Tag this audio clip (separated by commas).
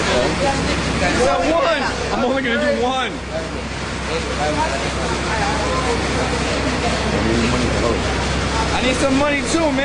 Speech